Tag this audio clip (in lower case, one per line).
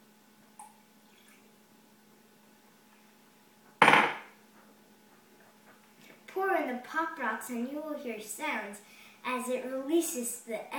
speech